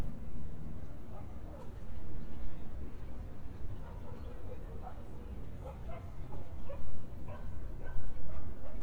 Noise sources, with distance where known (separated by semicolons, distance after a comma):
dog barking or whining, far